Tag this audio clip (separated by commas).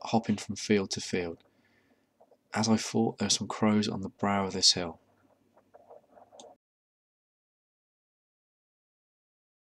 Speech